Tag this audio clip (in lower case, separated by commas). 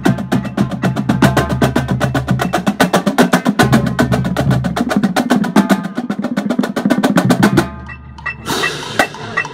music, percussion